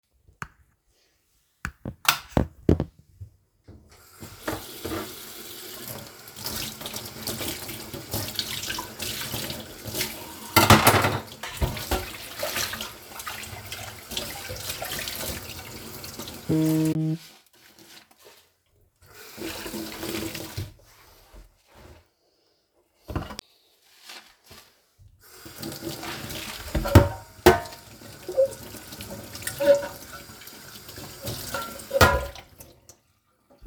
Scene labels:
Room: kitchen; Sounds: light switch, running water, cutlery and dishes, phone ringing

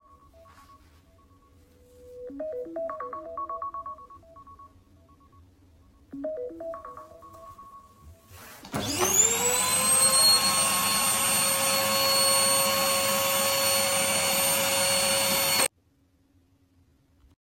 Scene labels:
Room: living room; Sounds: phone ringing, vacuum cleaner

